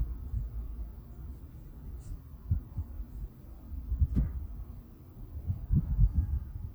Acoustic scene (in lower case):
residential area